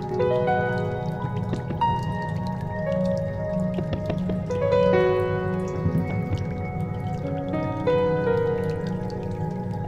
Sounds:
Music

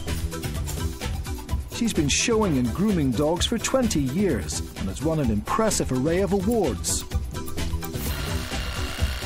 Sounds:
Speech, Music

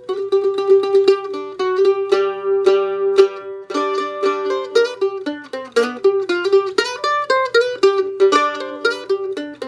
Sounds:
Mandolin, Music

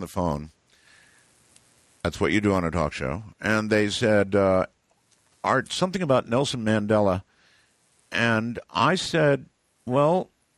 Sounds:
Speech

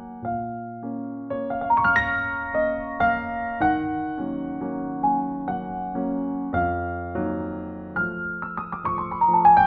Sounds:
Music, Lullaby

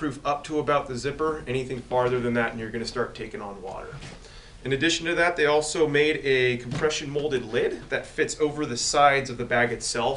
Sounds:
Speech

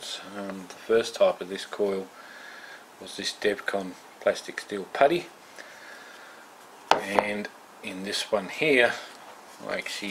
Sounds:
Speech

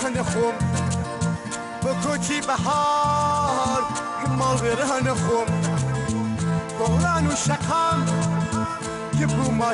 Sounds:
Music, Acoustic guitar, Guitar, Plucked string instrument, playing acoustic guitar, Musical instrument

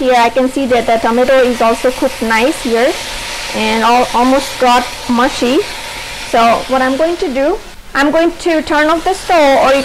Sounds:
Speech, inside a small room

